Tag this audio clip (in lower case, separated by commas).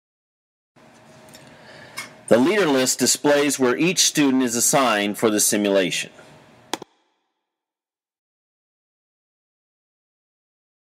speech